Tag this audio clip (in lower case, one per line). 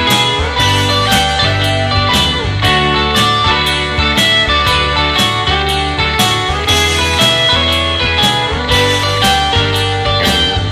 music